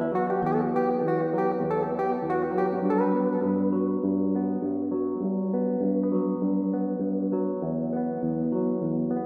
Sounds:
Music

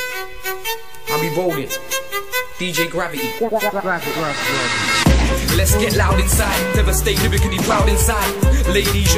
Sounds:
Speech, Hip hop music, Rapping, Music

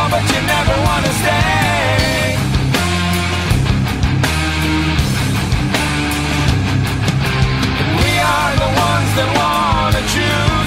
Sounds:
Heavy metal, Music

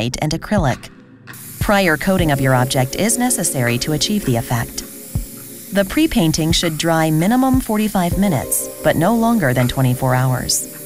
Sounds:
Music, Speech

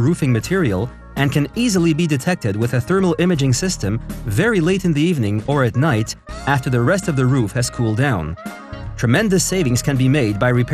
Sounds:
Speech, Music

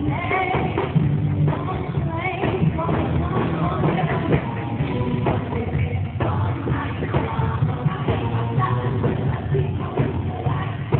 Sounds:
Music

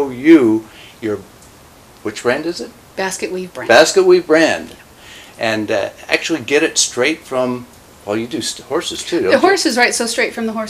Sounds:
Speech

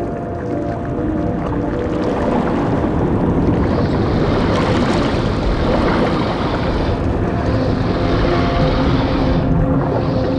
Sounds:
Ocean, Music

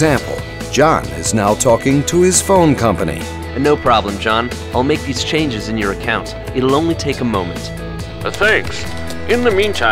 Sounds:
Male speech, Speech, Music, Conversation

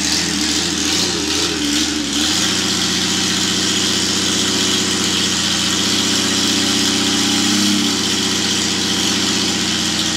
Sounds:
Idling, Vehicle, Medium engine (mid frequency), Engine, revving

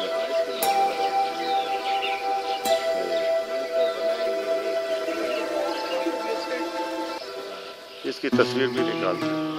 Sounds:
Speech, Music

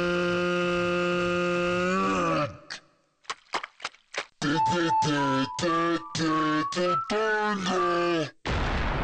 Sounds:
Music, Speech

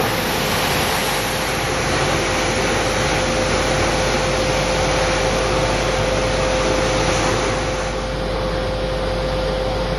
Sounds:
Vehicle, Aircraft engine, Aircraft

